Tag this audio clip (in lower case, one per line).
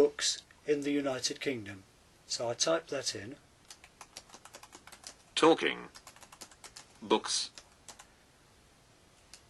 computer keyboard
typing